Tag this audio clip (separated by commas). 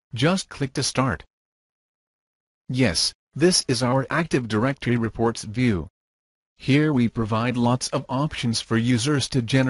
Speech